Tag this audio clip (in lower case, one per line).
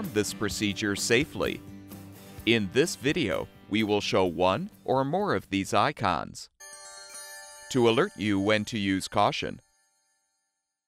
chime